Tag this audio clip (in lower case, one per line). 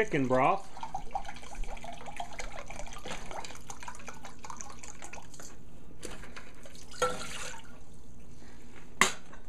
speech
inside a small room
liquid